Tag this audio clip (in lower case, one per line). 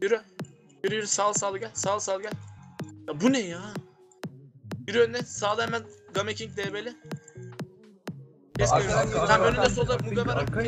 music
speech